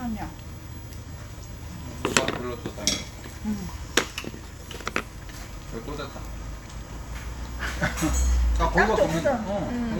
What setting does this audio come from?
restaurant